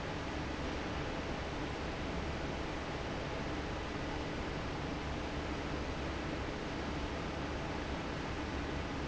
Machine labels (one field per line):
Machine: fan